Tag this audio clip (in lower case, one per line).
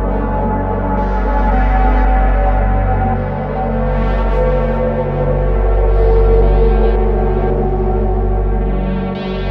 music